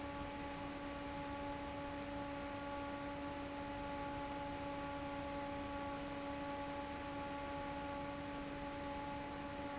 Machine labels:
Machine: fan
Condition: normal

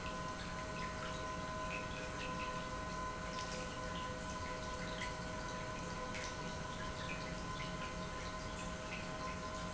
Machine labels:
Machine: pump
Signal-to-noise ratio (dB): 0 dB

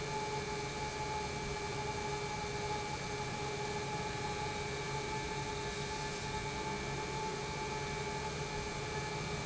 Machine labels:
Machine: pump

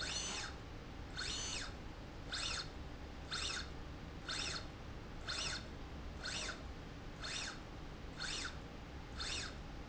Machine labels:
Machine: slide rail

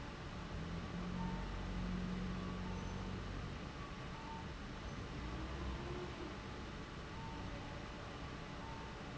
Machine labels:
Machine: fan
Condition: abnormal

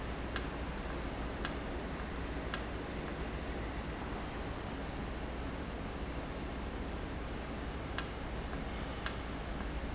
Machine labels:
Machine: valve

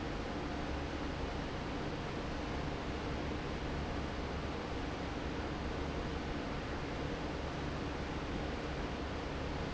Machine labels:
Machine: fan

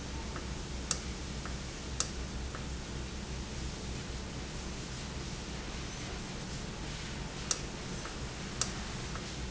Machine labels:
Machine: valve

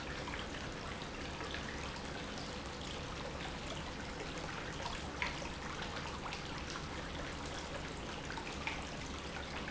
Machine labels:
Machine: pump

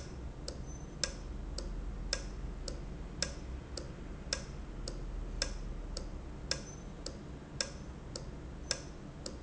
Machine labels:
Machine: valve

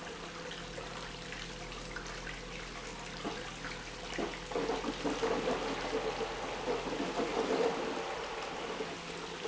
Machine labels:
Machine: pump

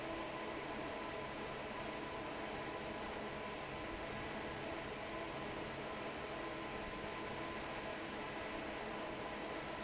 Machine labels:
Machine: fan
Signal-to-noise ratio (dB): 6 dB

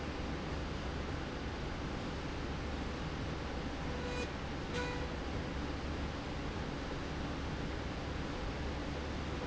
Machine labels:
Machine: slide rail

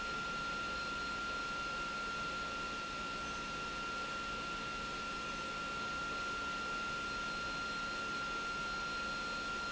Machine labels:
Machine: pump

